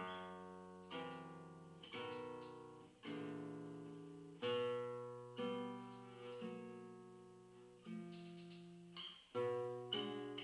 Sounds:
Music, Plucked string instrument, Musical instrument, Guitar, Acoustic guitar

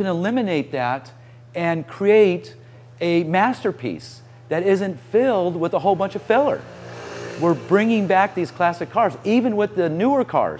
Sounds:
Vehicle, Car, Speech

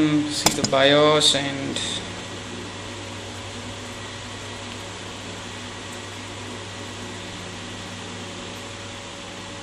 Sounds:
Speech

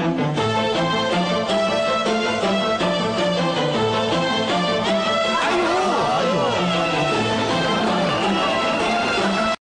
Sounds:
Speech, Music

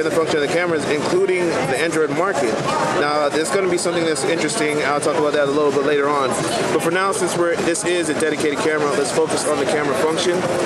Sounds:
Speech

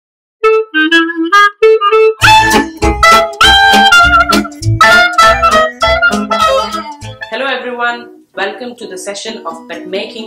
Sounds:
Saxophone, Music, Speech

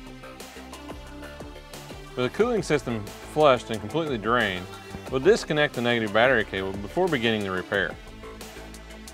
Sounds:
Speech, Music

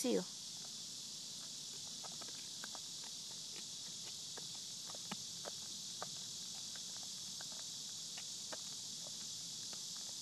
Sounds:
Speech, Animal

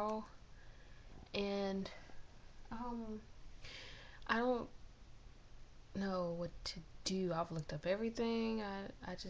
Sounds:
Speech

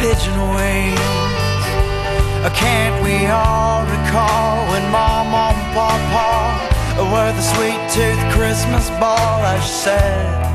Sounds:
Music

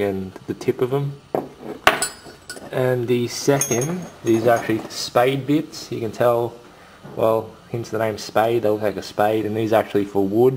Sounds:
Speech

